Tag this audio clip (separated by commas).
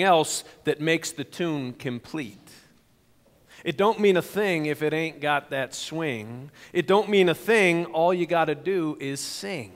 Speech